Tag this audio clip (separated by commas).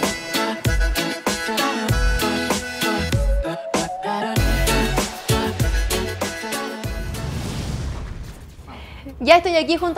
Music, Speech